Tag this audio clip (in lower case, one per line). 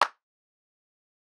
clapping
hands